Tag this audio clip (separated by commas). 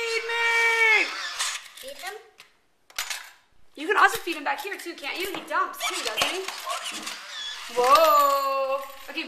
Speech